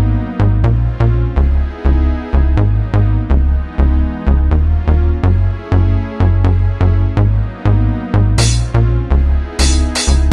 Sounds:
house music
electronic music
music

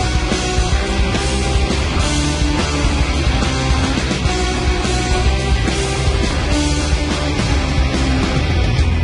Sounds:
music

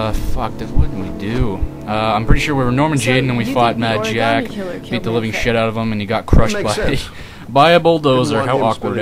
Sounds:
speech

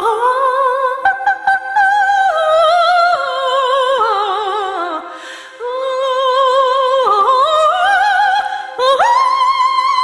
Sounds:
music

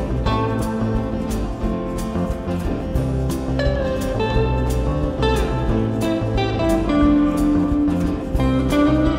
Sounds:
music
strum

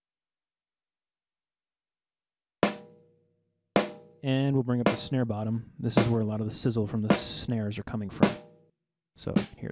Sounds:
drum
musical instrument
music

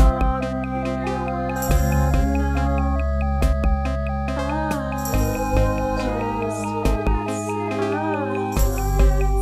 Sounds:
music

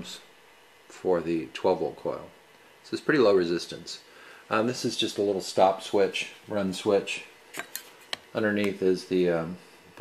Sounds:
speech

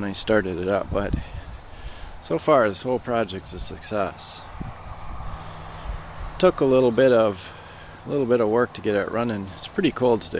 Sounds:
speech

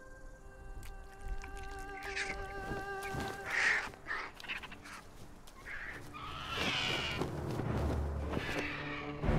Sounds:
music

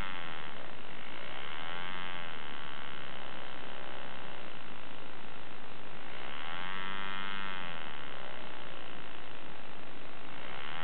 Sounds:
idling
engine

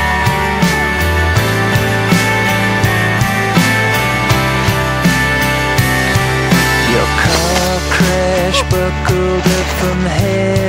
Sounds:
music

